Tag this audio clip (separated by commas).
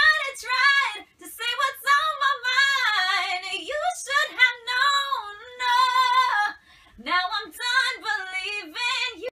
Female singing